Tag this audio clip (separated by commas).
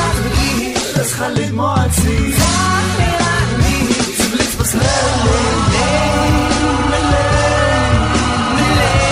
Rapping, Exciting music, Music